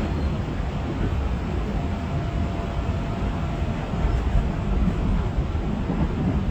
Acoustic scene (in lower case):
subway train